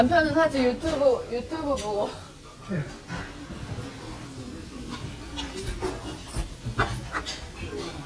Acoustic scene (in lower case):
restaurant